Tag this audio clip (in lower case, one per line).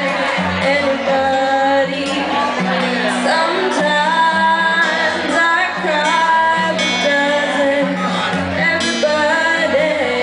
speech
music